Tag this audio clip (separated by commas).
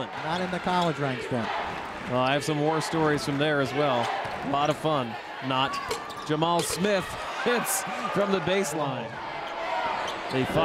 inside a public space, Speech